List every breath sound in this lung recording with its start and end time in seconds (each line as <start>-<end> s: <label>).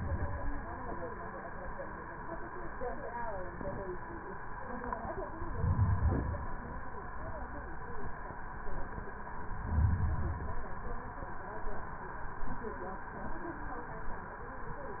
5.42-6.43 s: inhalation
9.48-10.58 s: inhalation